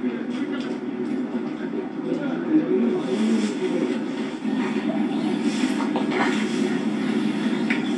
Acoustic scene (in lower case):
park